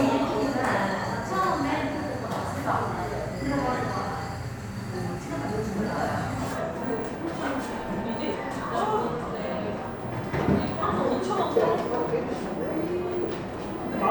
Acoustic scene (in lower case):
cafe